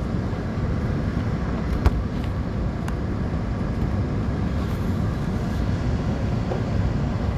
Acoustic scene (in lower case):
subway train